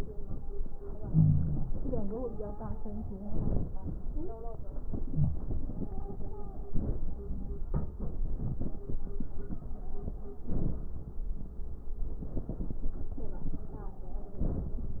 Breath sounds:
Inhalation: 0.92-1.69 s, 3.19-3.92 s, 4.79-5.74 s, 6.59-7.25 s, 10.32-11.10 s, 14.29-15.00 s
Wheeze: 0.94-1.72 s, 5.08-5.43 s
Crackles: 3.19-3.92 s

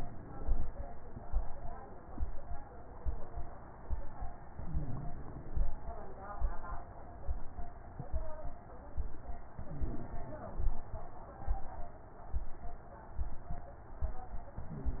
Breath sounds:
Inhalation: 4.50-5.62 s, 9.58-10.70 s, 14.65-15.00 s
Crackles: 4.50-5.62 s, 9.58-10.70 s, 14.65-15.00 s

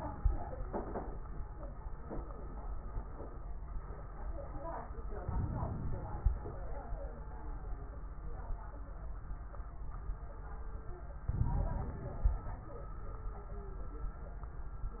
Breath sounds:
Inhalation: 5.22-6.65 s, 11.30-12.49 s
Crackles: 5.22-6.65 s, 11.30-12.49 s

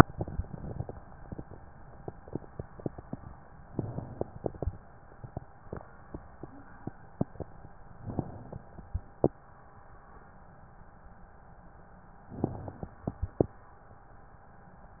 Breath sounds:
Inhalation: 0.00-1.02 s, 3.60-4.92 s, 7.94-9.26 s, 12.25-13.57 s
Crackles: 0.00-1.03 s, 3.60-4.92 s, 7.94-9.26 s, 12.25-13.57 s

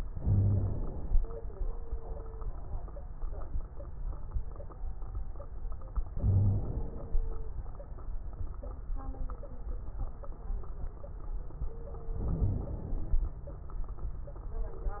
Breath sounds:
Inhalation: 0.11-1.25 s, 6.09-7.14 s, 12.14-13.23 s
Wheeze: 0.11-0.76 s, 6.22-6.62 s
Crackles: 12.14-13.23 s

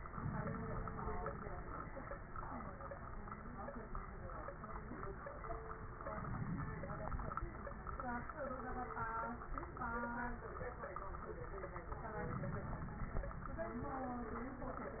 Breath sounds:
Inhalation: 0.07-1.43 s, 6.16-7.38 s, 12.22-13.45 s
Crackles: 0.07-1.43 s, 6.16-7.38 s, 12.22-13.45 s

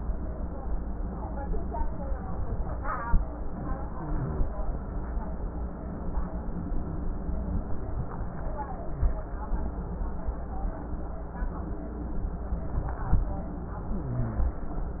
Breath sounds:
Wheeze: 13.85-14.62 s

